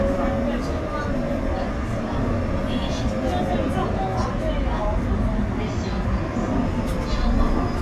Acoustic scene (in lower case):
subway train